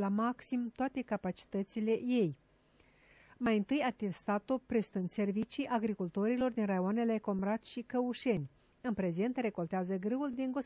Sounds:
speech

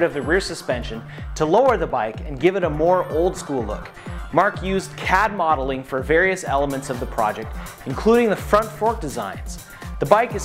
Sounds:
music, speech

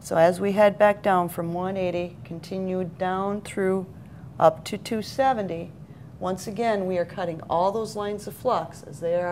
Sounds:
speech

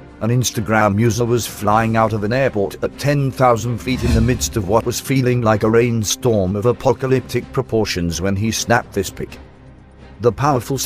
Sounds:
music, speech

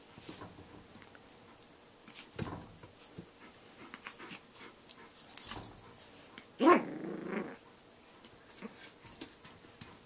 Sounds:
dog, animal, pets, canids, inside a small room

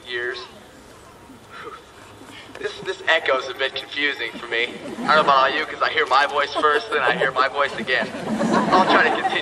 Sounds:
speech, man speaking

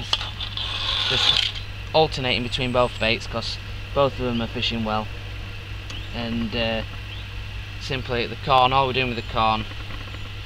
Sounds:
speech, outside, rural or natural

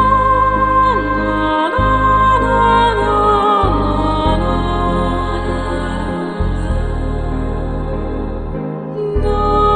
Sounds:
new-age music, music

